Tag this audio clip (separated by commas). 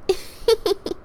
Laughter, Giggle, chortle, Human voice